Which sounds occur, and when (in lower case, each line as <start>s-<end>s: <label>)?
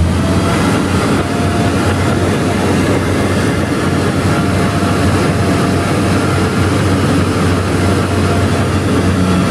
0.0s-9.5s: heavy engine (low frequency)
0.0s-9.5s: roadway noise